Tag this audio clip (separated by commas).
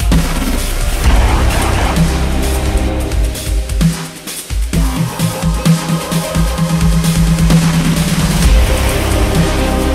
Sound effect, Music